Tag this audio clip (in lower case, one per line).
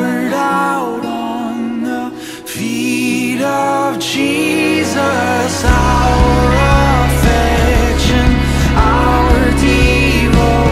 music
singing